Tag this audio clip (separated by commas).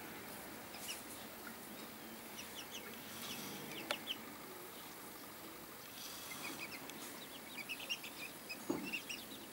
Bird, livestock